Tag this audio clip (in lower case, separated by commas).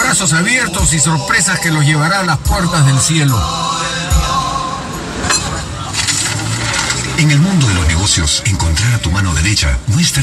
music, speech